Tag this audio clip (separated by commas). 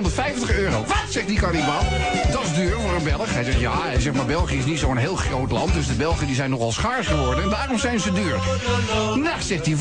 Music, Speech